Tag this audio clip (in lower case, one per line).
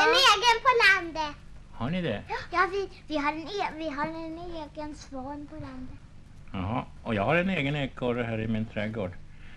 speech